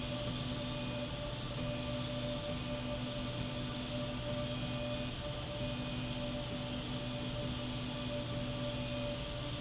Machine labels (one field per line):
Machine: slide rail